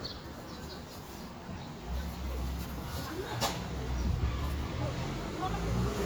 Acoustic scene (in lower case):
residential area